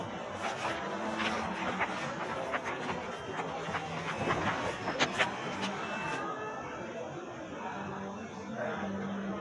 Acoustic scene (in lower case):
crowded indoor space